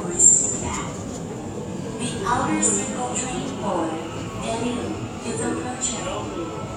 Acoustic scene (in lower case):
subway station